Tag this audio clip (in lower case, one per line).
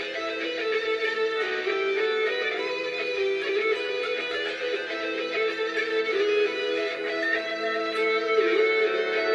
guitar
plucked string instrument
music
musical instrument
electric guitar